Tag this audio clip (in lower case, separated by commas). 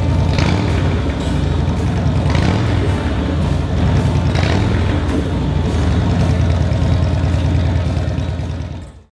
vehicle, music, motorcycle